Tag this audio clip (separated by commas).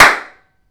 Clapping, Hands